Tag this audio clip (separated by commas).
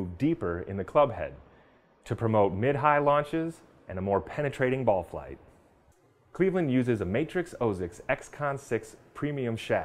Speech